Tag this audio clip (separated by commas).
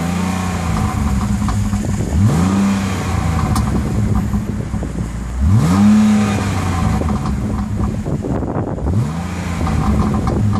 Car, Vehicle